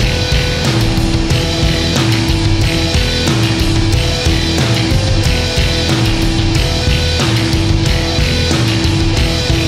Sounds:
music, punk rock, progressive rock

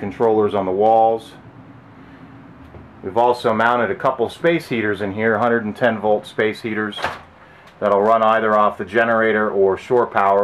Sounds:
speech

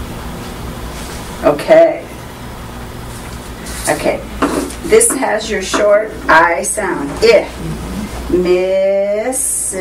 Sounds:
female speech, speech

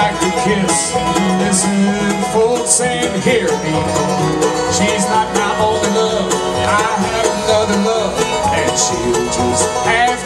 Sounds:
singing, banjo, country, song, bluegrass, playing banjo

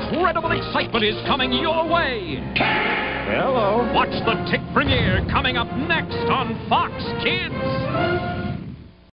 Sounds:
music, speech

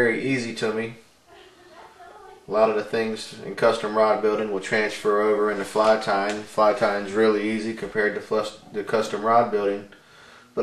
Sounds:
speech

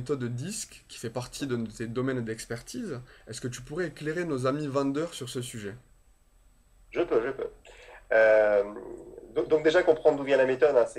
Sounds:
speech

